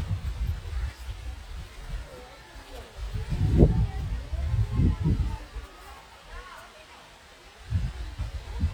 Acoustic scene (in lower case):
park